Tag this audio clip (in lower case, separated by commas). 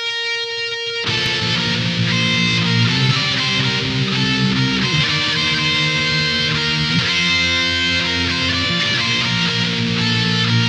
music, guitar, plucked string instrument, strum, musical instrument, electric guitar